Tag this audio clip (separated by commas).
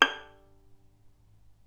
Music, Bowed string instrument, Musical instrument